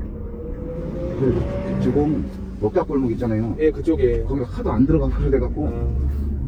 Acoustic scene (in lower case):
car